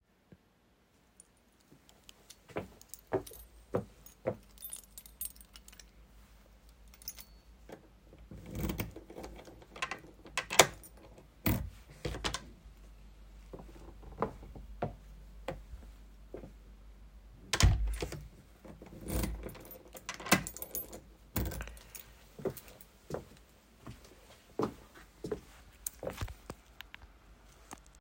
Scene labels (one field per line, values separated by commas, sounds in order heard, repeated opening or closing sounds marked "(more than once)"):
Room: living room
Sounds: footsteps, keys, door (more than once)